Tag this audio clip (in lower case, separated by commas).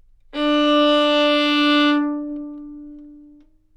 musical instrument, bowed string instrument, music